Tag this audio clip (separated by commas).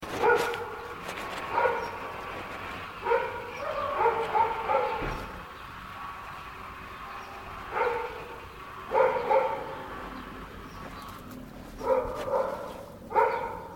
pets, Animal, Dog